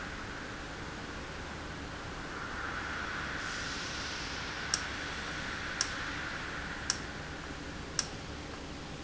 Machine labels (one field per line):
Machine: valve